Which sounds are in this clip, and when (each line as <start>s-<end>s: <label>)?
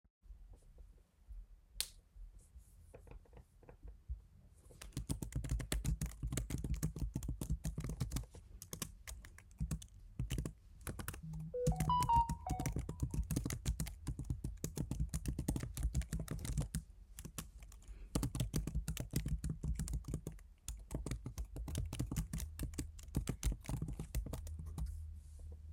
1.7s-2.1s: light switch
4.8s-25.1s: keyboard typing
11.2s-13.6s: phone ringing